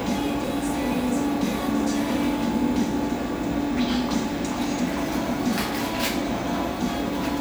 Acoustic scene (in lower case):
cafe